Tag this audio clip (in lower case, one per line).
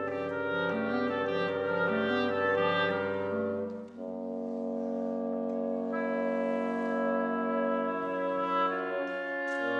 french horn
inside a large room or hall
music
orchestra
clarinet
musical instrument